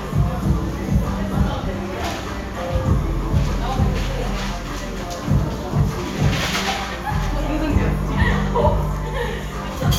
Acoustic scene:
cafe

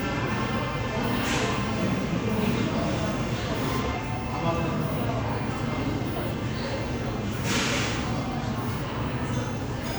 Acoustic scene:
crowded indoor space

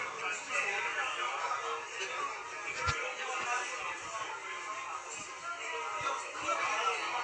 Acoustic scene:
restaurant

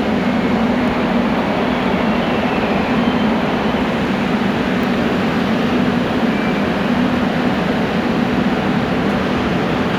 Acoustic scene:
subway station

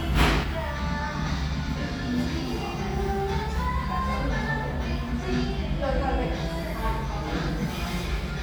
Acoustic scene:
restaurant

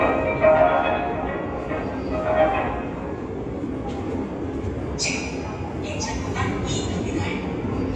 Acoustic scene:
subway station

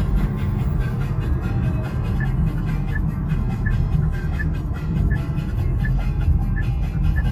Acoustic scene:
car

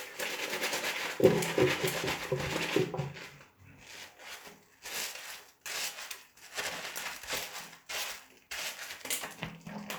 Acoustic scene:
restroom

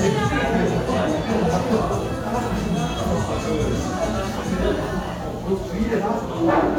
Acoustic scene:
crowded indoor space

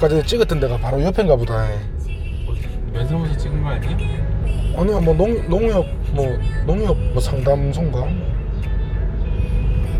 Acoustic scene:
car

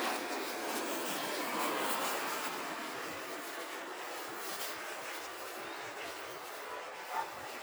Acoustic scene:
residential area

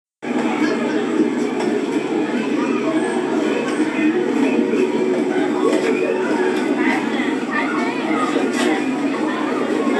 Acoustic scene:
park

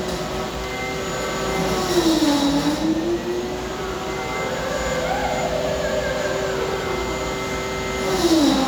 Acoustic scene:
cafe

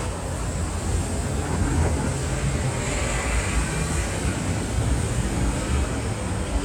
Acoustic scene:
street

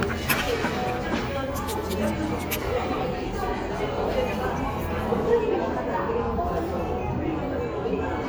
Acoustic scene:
cafe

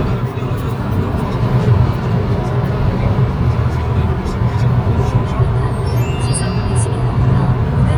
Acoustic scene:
car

